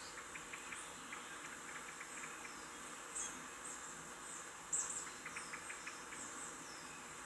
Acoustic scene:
park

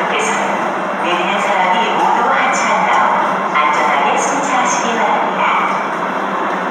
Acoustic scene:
subway station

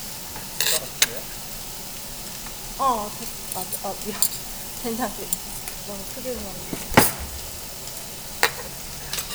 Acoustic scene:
restaurant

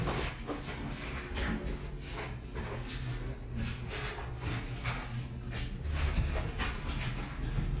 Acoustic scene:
elevator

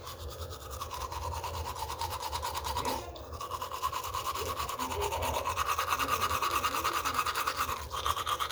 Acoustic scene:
restroom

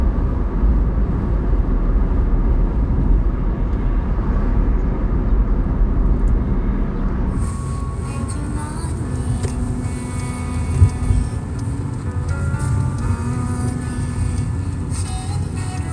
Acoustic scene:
car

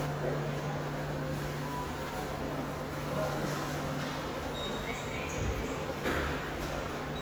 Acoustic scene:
subway station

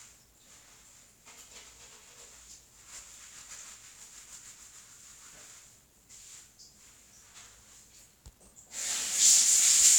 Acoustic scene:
restroom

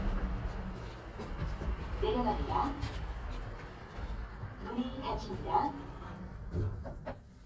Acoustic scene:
elevator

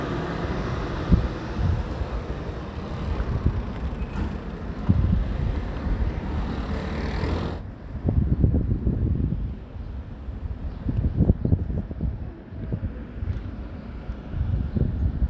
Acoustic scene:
residential area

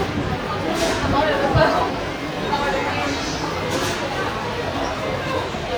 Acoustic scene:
subway station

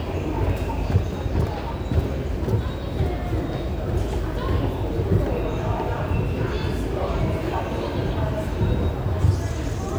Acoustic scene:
subway station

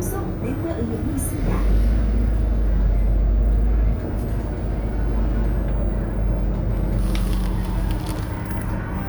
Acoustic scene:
bus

